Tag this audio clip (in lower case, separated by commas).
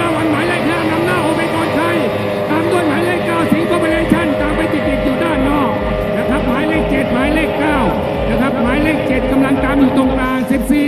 speech